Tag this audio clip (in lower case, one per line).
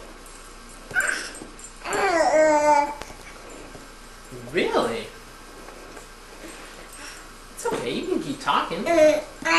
people babbling
inside a small room
speech
babbling